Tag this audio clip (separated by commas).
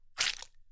Liquid